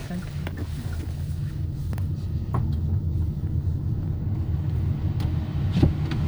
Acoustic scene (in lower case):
car